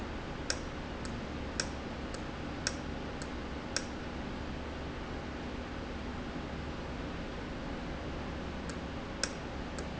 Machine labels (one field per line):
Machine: valve